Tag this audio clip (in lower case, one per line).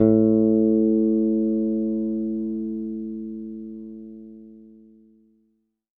musical instrument
guitar
plucked string instrument
bass guitar
music